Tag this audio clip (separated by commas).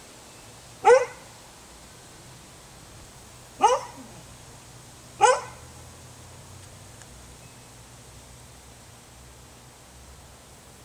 pets, Bow-wow, Whimper (dog), Animal, dog bow-wow, Dog